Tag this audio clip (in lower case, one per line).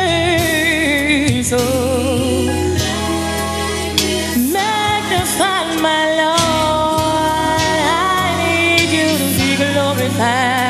music
singing